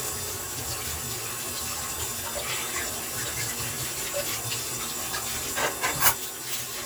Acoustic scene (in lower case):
kitchen